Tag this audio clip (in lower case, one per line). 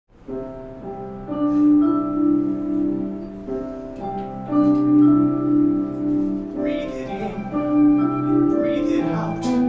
marimba
glockenspiel
mallet percussion